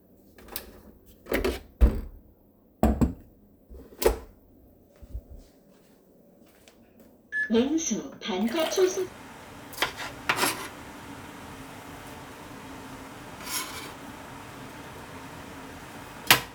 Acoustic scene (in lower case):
kitchen